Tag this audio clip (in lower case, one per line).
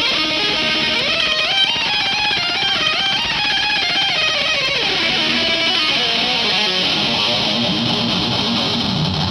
music